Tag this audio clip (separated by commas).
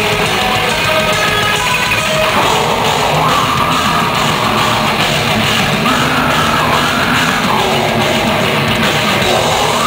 Music